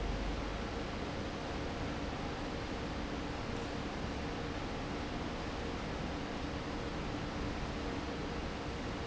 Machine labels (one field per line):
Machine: fan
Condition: normal